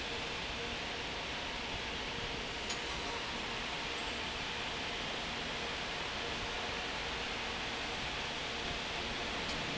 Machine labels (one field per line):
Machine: fan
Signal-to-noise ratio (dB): -6 dB